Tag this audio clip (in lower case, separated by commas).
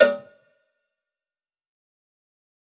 bell, cowbell